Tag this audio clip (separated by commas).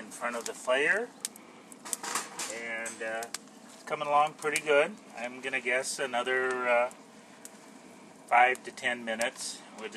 outside, rural or natural, Speech